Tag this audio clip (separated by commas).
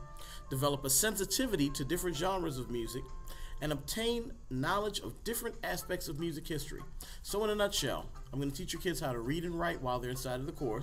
Speech, Music